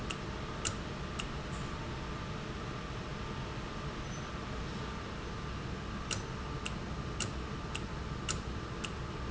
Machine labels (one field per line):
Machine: valve